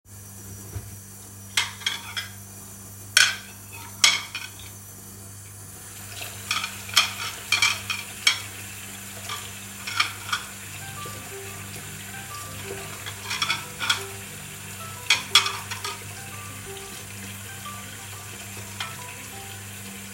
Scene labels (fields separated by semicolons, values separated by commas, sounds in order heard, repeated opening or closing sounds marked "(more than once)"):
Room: kitchen; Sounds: cutlery and dishes, running water, phone ringing